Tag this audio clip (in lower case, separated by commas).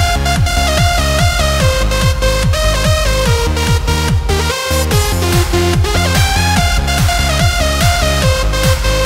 music, techno, electronic music